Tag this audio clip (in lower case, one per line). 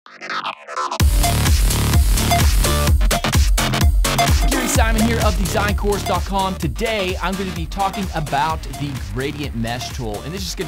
speech
music